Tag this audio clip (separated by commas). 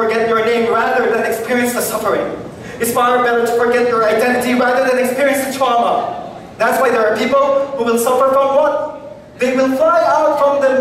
man speaking, Speech